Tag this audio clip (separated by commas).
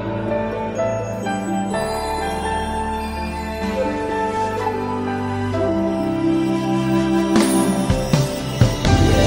Music, Theme music